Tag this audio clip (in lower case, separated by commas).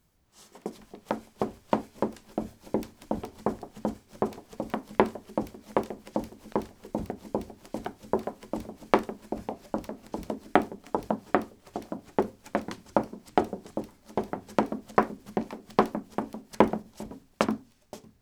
run